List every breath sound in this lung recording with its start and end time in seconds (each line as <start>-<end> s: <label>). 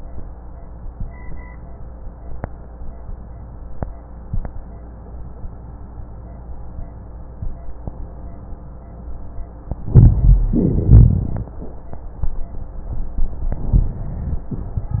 9.81-10.49 s: inhalation
9.83-10.44 s: rhonchi
10.49-11.50 s: rhonchi
10.51-11.50 s: exhalation